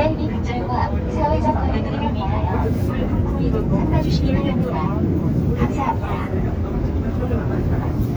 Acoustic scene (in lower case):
subway train